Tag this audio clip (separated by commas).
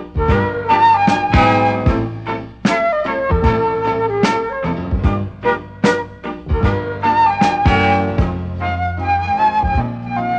Tender music, Music